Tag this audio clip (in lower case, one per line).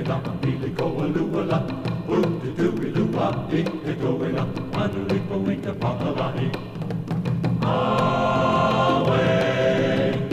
music
choir